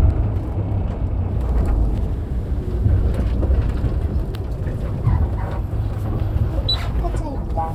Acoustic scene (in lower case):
bus